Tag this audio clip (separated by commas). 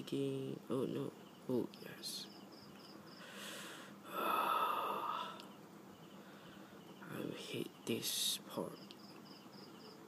Speech, inside a small room